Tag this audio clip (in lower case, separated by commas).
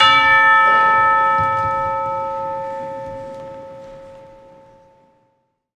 musical instrument, music, percussion, bell, church bell